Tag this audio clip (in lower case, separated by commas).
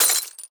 glass, shatter